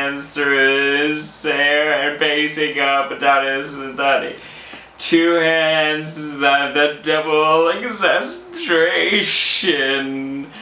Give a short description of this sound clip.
A man is speaking